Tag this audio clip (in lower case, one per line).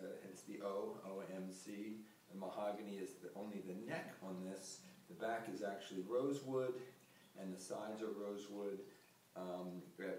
speech